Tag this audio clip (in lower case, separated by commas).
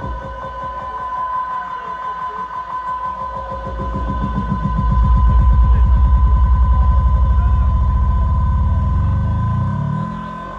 music